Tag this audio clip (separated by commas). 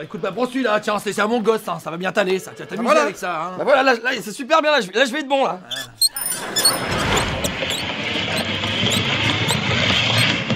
Speech